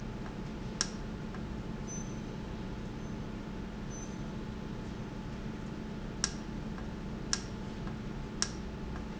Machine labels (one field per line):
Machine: valve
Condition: normal